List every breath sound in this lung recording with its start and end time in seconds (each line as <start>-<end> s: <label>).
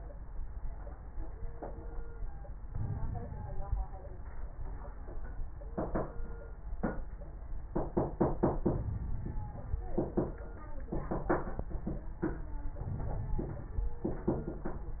2.66-3.87 s: inhalation
2.66-3.87 s: crackles
8.67-9.88 s: inhalation
8.67-9.88 s: crackles
12.82-14.04 s: inhalation
12.82-14.04 s: crackles